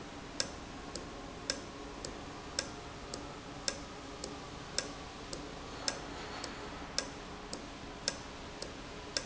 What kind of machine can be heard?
valve